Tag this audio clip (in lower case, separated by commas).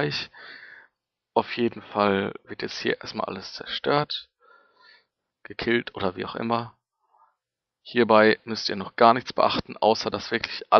speech